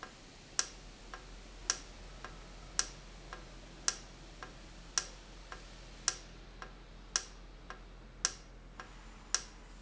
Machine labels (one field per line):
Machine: valve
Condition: normal